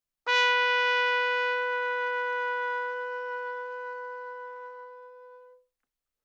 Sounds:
Brass instrument, Music, Trumpet, Musical instrument

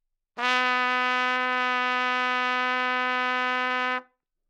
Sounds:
Music, Musical instrument, Trumpet, Brass instrument

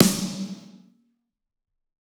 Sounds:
Percussion, Drum, Music, Snare drum, Musical instrument

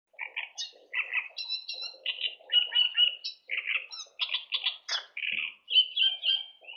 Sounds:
Wild animals, Bird vocalization, Bird, Animal

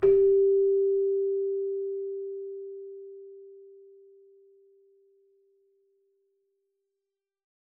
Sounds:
Musical instrument, Music, Keyboard (musical)

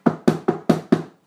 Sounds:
Domestic sounds, Wood, Door, Knock

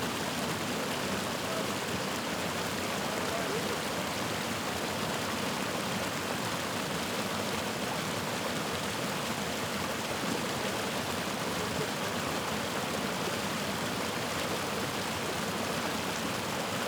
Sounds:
Water, Stream

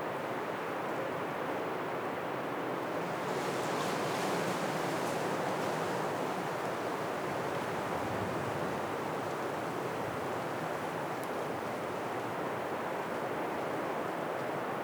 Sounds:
Wind

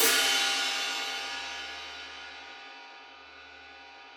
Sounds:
Percussion, Musical instrument, Hi-hat, Music, Cymbal

